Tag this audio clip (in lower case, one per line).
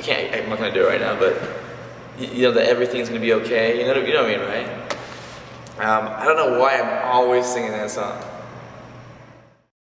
speech